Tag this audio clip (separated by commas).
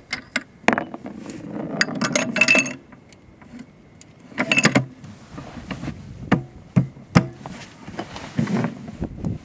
Speech